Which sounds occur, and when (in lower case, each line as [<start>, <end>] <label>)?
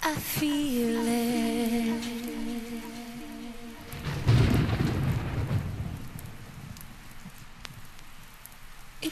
[0.00, 9.11] rain on surface
[4.01, 6.86] thunder
[8.39, 8.56] tick